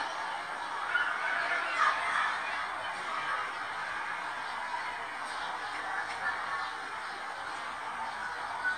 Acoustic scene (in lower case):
residential area